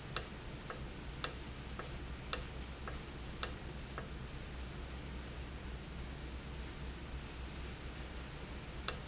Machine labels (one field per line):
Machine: valve